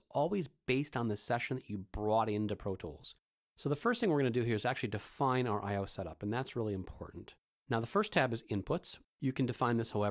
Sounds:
speech

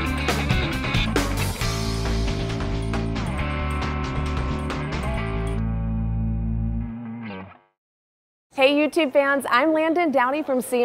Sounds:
effects unit

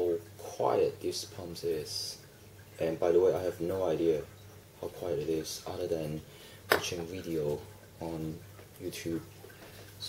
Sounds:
speech

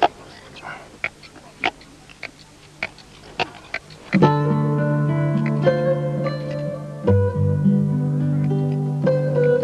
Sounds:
outside, rural or natural, music

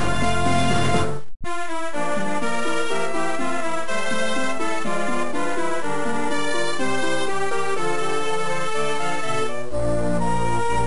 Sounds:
theme music, music

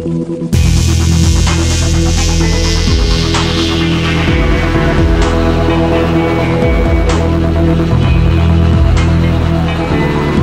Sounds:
techno, electronic music, music

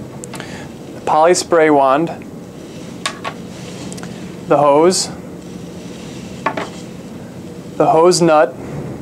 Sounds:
speech

